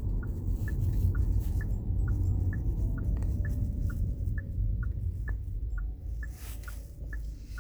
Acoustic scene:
car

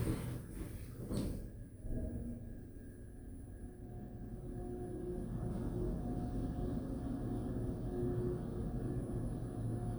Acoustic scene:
elevator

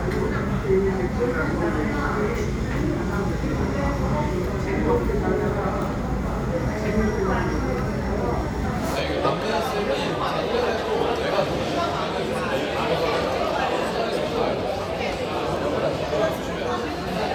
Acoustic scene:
crowded indoor space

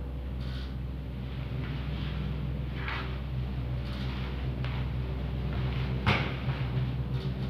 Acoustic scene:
elevator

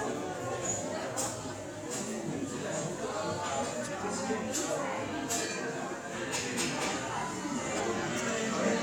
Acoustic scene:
cafe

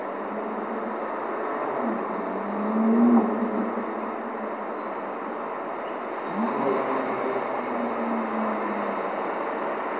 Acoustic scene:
street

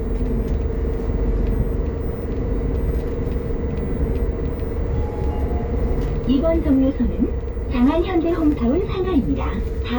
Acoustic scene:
bus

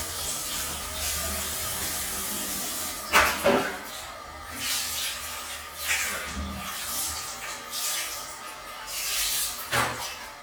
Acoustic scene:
restroom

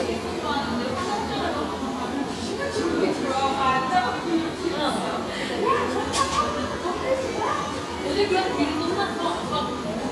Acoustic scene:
cafe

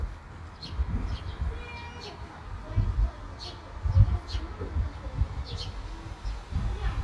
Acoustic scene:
park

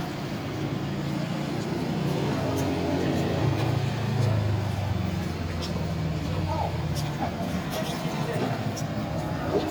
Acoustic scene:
street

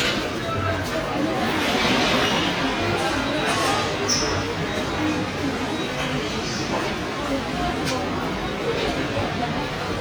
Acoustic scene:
subway station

